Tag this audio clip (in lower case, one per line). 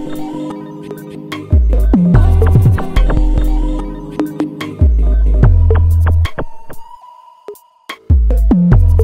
sampler
drum machine